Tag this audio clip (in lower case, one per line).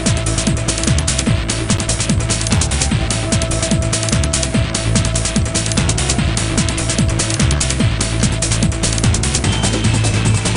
music